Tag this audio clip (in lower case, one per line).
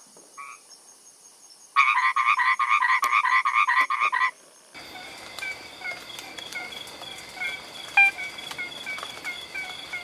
frog croaking